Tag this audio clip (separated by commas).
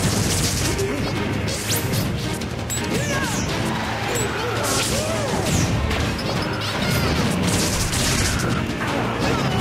thwack